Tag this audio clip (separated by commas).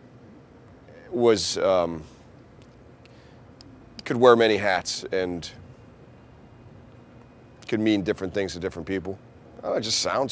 Speech